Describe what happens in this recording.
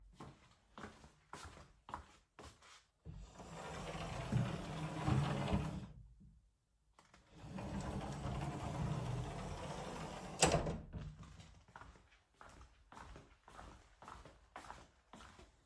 I walked to the wardrobe, opened and closed it.